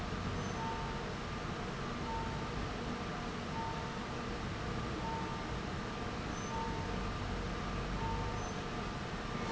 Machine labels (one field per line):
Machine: fan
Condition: abnormal